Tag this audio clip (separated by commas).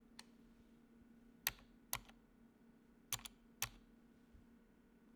Computer keyboard, Domestic sounds, Typing